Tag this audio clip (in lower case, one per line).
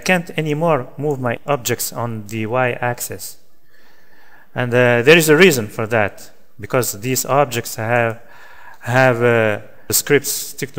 speech